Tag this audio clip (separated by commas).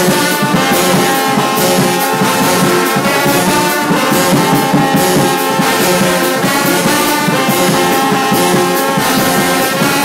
Roll, Music, Musical instrument, Brass instrument